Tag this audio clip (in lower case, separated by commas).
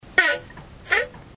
fart